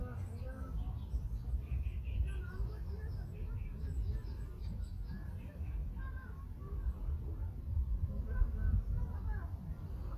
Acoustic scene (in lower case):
park